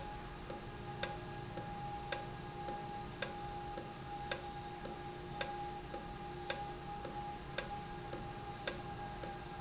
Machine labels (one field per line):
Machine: valve